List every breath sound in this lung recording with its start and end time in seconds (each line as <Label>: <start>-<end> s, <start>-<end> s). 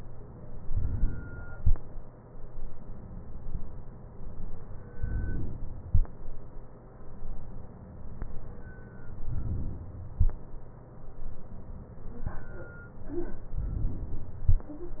Inhalation: 0.71-1.58 s, 4.99-5.86 s, 9.22-10.09 s, 13.56-14.43 s